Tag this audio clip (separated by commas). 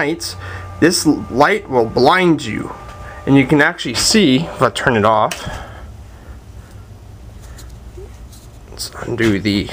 Speech